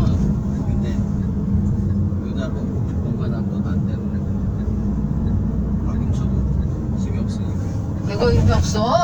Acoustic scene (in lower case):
car